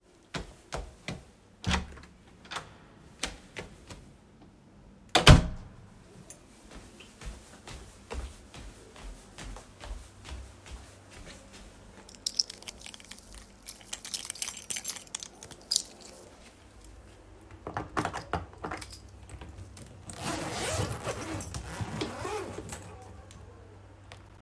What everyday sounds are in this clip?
footsteps, door, keys